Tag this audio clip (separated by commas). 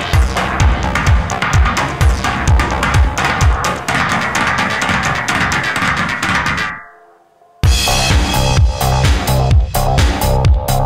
Music